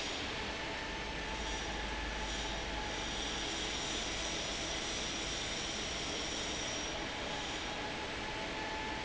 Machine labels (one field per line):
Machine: fan